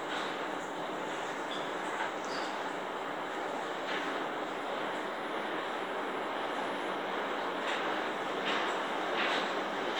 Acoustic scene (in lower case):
elevator